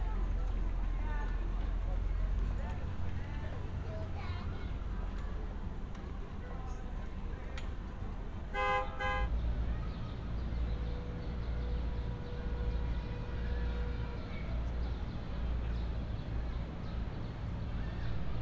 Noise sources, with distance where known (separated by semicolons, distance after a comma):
car horn; unidentified human voice